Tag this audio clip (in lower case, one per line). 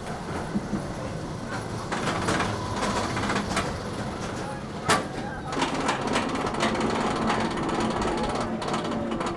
rail transport